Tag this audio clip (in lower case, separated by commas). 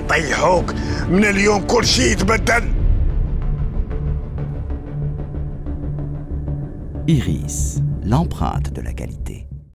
speech, music